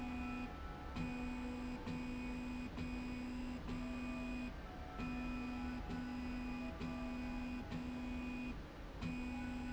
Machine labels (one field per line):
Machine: slide rail